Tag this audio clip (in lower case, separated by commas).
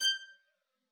music, musical instrument, bowed string instrument